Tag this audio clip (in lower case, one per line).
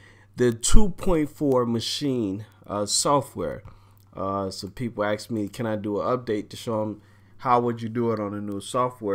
speech